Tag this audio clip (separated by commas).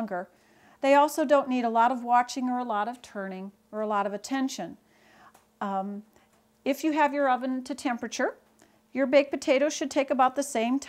Speech